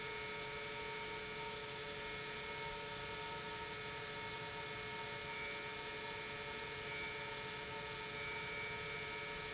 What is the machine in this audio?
pump